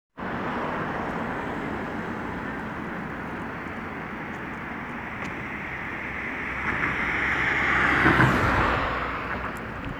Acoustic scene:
street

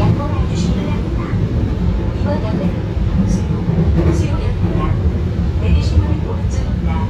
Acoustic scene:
subway train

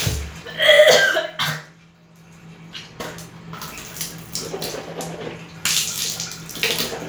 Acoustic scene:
restroom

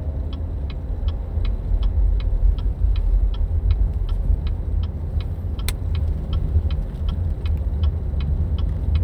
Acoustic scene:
car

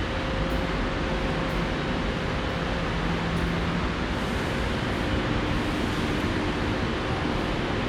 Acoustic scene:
subway station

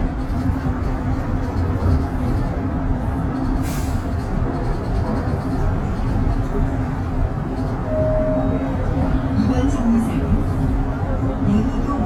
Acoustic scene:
bus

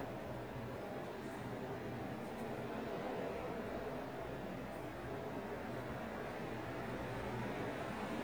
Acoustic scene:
subway station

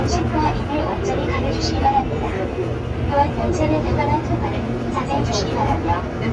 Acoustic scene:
subway train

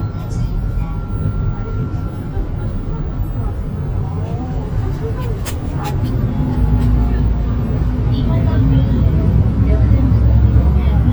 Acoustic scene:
bus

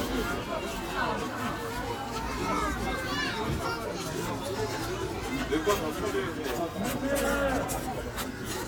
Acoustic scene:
park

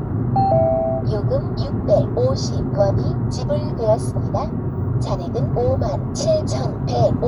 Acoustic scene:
car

